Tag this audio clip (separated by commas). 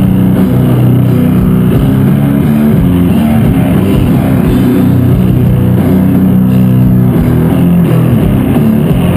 Ambient music, Music, Electronic music